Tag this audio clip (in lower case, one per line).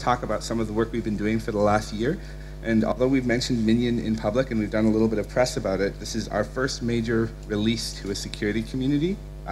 speech